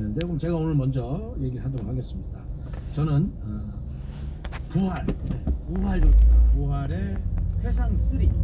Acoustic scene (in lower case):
car